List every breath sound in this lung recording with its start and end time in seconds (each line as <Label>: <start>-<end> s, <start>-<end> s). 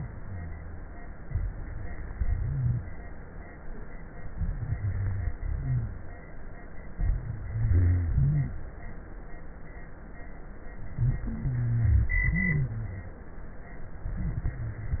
Inhalation: 1.25-2.15 s, 4.37-5.31 s, 6.93-7.44 s, 8.18-8.60 s, 12.26-13.15 s
Exhalation: 2.15-2.85 s, 5.37-6.11 s, 7.48-8.18 s, 11.25-12.14 s
Rhonchi: 2.37-2.85 s, 4.55-5.29 s, 5.37-6.11 s, 6.93-7.44 s, 7.51-8.08 s, 8.18-8.60 s, 11.27-12.16 s, 12.28-13.17 s